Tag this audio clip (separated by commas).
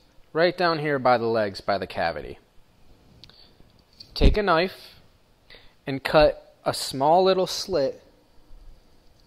Speech